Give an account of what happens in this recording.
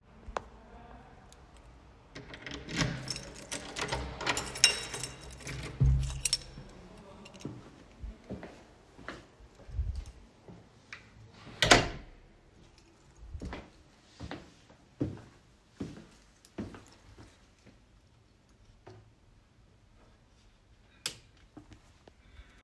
I opened the apartment door with the key, then closed the door, then made a couple steps and flipped the light. switch